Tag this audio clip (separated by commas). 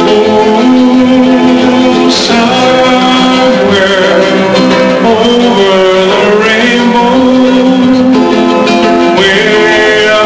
Strum, Guitar, Musical instrument, Plucked string instrument, Music, Acoustic guitar